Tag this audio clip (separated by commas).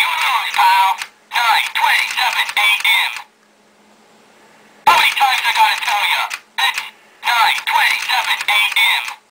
Speech